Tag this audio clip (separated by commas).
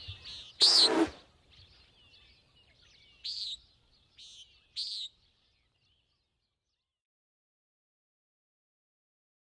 bird squawking